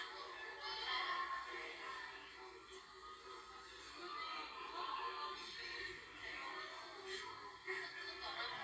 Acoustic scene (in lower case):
crowded indoor space